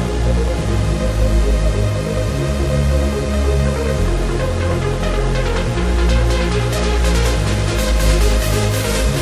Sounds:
Electronic music, Techno, Music

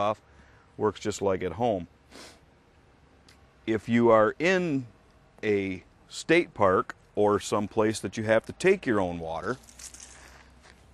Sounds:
Speech

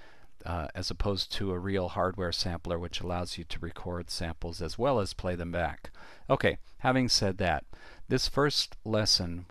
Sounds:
Speech

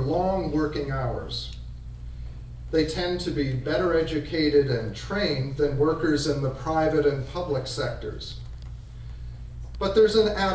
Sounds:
monologue, Speech

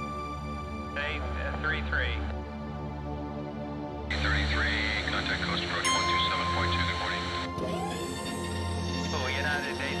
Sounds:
Speech, Music

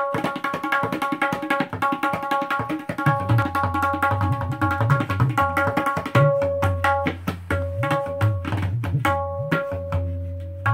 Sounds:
playing tabla

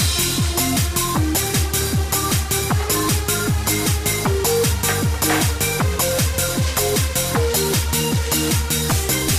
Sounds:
Music

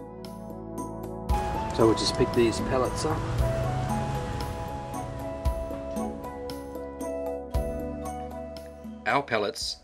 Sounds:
Music, Speech

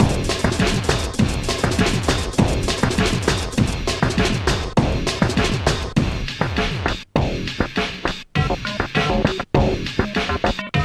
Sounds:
Musical instrument, Music, Bass drum, Drum kit, Drum

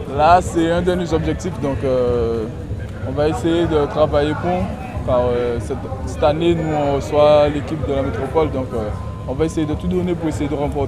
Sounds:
Speech

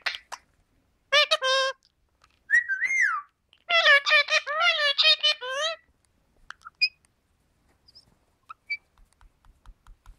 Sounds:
parrot talking

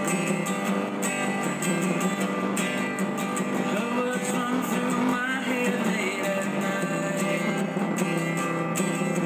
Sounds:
Musical instrument, Acoustic guitar, Guitar, Music, Plucked string instrument

